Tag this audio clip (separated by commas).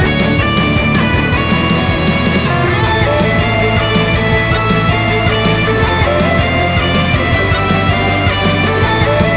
playing bagpipes